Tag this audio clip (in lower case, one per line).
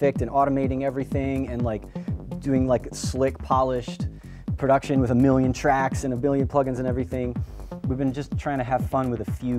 music
speech
techno
electronic music